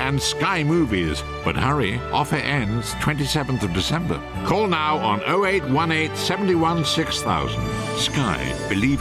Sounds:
music, speech

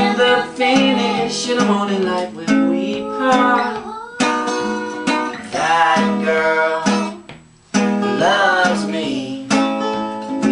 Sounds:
music

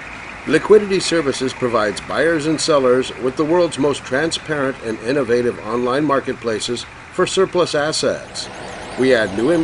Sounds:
vehicle, speech

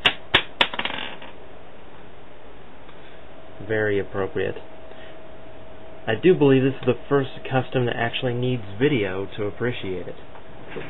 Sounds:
speech

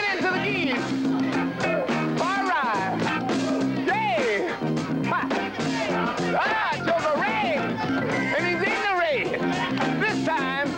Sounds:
music, speech

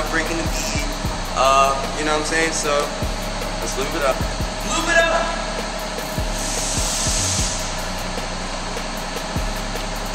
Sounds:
speech, music

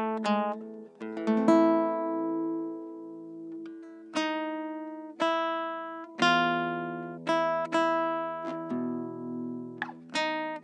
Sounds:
plucked string instrument, musical instrument, music, strum, guitar, acoustic guitar

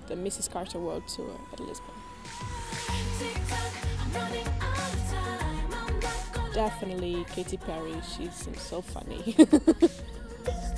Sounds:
music, speech

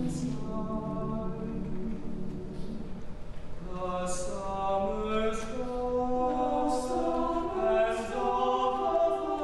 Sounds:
choir, male singing

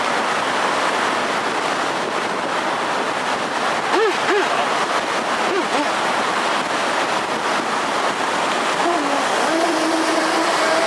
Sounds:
vehicle, boat, outside, rural or natural

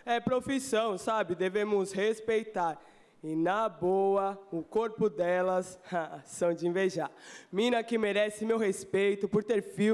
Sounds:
speech

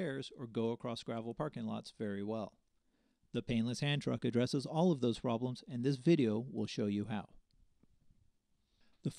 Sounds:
speech

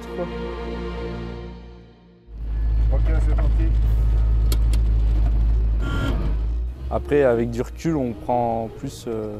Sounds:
music, male speech, speech

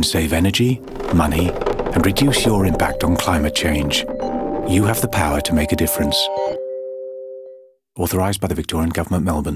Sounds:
speech, music

